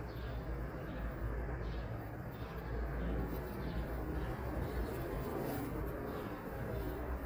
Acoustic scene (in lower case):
residential area